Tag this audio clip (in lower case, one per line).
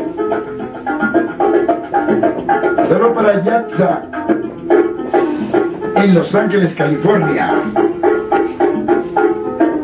speech
music